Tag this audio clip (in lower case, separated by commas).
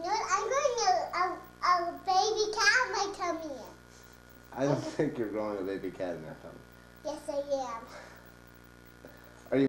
speech